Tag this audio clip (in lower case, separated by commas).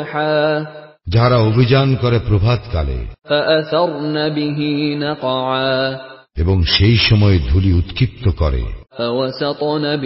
speech